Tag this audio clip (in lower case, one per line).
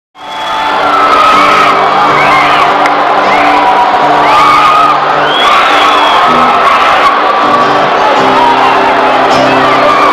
music
crowd